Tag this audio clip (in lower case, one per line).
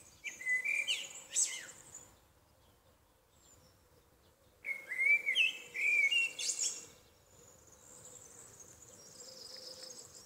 wood thrush calling